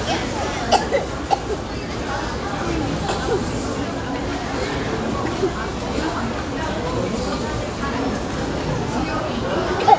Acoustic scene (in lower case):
restaurant